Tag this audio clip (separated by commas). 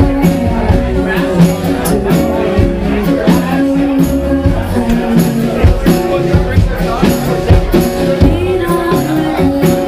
Speech, Music